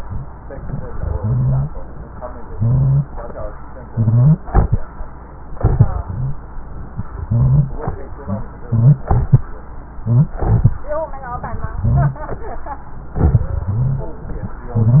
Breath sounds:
1.06-1.73 s: wheeze
2.49-3.15 s: wheeze
3.87-4.44 s: wheeze
6.03-6.40 s: wheeze
7.23-7.80 s: wheeze
8.65-9.07 s: wheeze
10.02-10.38 s: wheeze
11.76-12.24 s: wheeze
13.66-14.14 s: wheeze

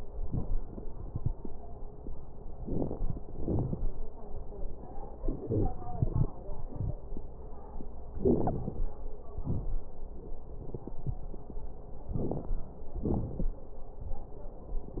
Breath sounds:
2.63-3.22 s: inhalation
2.63-3.22 s: crackles
3.29-3.88 s: exhalation
3.29-3.88 s: crackles
5.18-5.69 s: inhalation
5.43-5.69 s: wheeze
5.86-6.25 s: exhalation
5.86-6.25 s: crackles
8.20-8.84 s: inhalation
8.20-8.84 s: crackles
9.32-9.83 s: exhalation
9.32-9.83 s: crackles
12.12-12.59 s: inhalation
12.12-12.59 s: crackles
13.01-13.49 s: exhalation
13.01-13.49 s: crackles

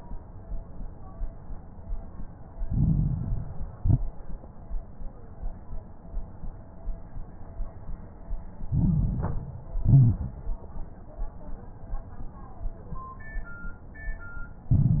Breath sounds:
2.62-3.74 s: inhalation
2.62-3.74 s: crackles
3.78-4.22 s: exhalation
3.78-4.22 s: crackles
8.68-9.80 s: inhalation
8.68-9.80 s: crackles
9.80-10.25 s: exhalation
9.80-10.25 s: crackles
14.73-15.00 s: inhalation
14.73-15.00 s: crackles

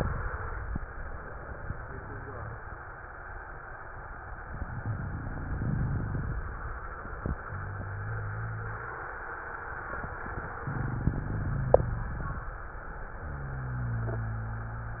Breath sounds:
4.45-6.37 s: inhalation
7.48-9.16 s: exhalation
7.48-9.16 s: rhonchi
10.68-12.41 s: inhalation
10.68-12.41 s: rhonchi

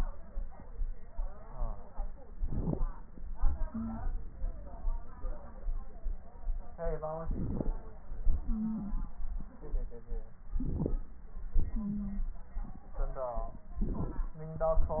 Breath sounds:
2.31-2.85 s: crackles
2.35-2.89 s: inhalation
3.73-4.00 s: wheeze
7.25-7.78 s: inhalation
7.25-7.78 s: crackles
8.44-8.95 s: wheeze
10.53-11.06 s: inhalation
10.53-11.06 s: crackles
11.72-12.23 s: wheeze
13.79-14.33 s: inhalation
13.79-14.33 s: crackles

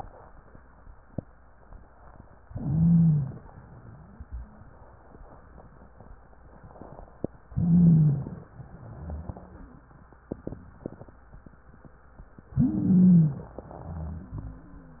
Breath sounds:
2.48-3.45 s: inhalation
2.48-3.45 s: wheeze
3.49-4.70 s: exhalation
3.49-4.70 s: wheeze
7.48-8.45 s: inhalation
7.48-8.45 s: wheeze
8.53-9.90 s: exhalation
8.53-9.90 s: wheeze
12.52-13.49 s: inhalation
12.52-13.49 s: wheeze
13.71-15.00 s: exhalation
13.71-15.00 s: wheeze

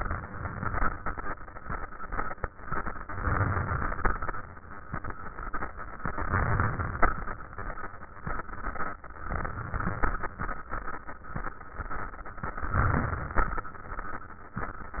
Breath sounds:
3.19-4.33 s: inhalation
6.00-7.37 s: inhalation
9.25-10.62 s: inhalation
12.73-13.72 s: inhalation

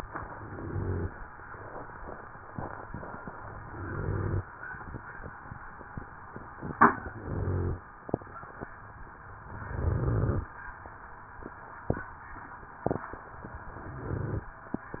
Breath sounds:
0.00-1.10 s: inhalation
0.36-1.06 s: rhonchi
3.36-4.46 s: inhalation
3.74-4.44 s: rhonchi
7.09-7.86 s: inhalation
7.09-7.86 s: rhonchi
9.56-10.49 s: inhalation
9.56-10.49 s: rhonchi
13.85-14.52 s: inhalation
13.85-14.52 s: rhonchi

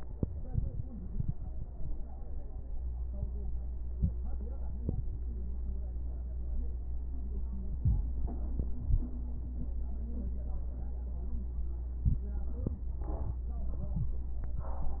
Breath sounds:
7.76-8.20 s: inhalation
8.75-9.19 s: exhalation

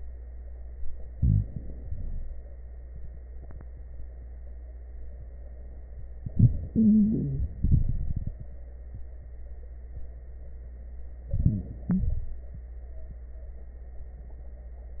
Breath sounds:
1.06-1.80 s: inhalation
1.06-1.80 s: crackles
1.83-2.47 s: exhalation
1.83-2.47 s: crackles
6.24-7.48 s: inhalation
6.24-7.48 s: wheeze
7.53-8.58 s: exhalation
7.53-8.58 s: crackles
11.27-11.84 s: inhalation
11.27-11.84 s: crackles
11.89-12.46 s: exhalation
11.89-12.46 s: crackles

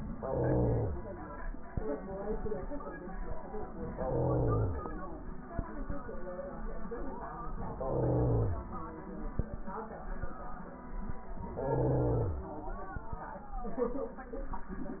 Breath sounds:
0.10-0.97 s: inhalation
3.93-4.80 s: inhalation
7.73-8.60 s: inhalation
11.56-12.43 s: inhalation

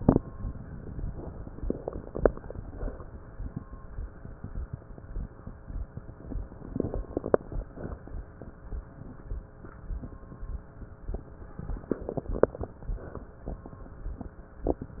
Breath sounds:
1.59-2.31 s: crackles
1.61-2.29 s: inhalation
2.44-3.25 s: exhalation
6.68-7.40 s: crackles
6.72-7.40 s: inhalation
7.76-8.57 s: exhalation
11.87-12.68 s: inhalation
11.87-12.68 s: crackles
12.83-13.64 s: exhalation

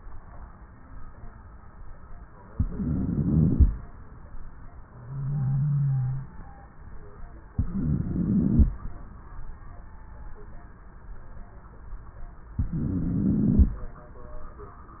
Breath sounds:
2.54-3.67 s: inhalation
2.54-3.67 s: wheeze
7.59-8.72 s: inhalation
7.59-8.72 s: wheeze
12.65-13.79 s: inhalation
12.65-13.79 s: wheeze

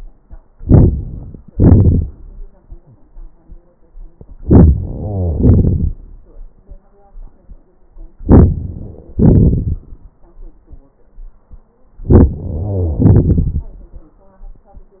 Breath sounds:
0.55-1.52 s: inhalation
1.50-2.47 s: exhalation
4.38-4.87 s: inhalation
4.86-6.16 s: exhalation
4.87-5.78 s: crackles
8.20-9.12 s: inhalation
9.12-10.20 s: exhalation
9.12-10.20 s: crackles
12.02-12.39 s: inhalation
12.41-13.74 s: crackles
12.41-13.97 s: exhalation

